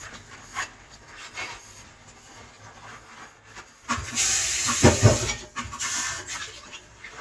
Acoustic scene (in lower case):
kitchen